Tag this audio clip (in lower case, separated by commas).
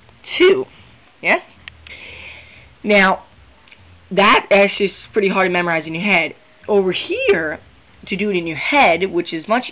speech